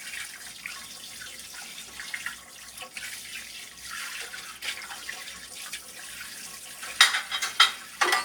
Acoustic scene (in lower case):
kitchen